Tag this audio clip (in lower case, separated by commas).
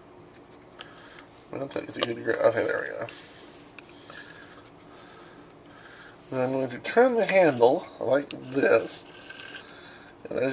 speech